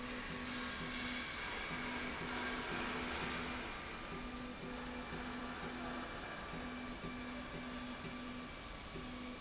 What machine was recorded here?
slide rail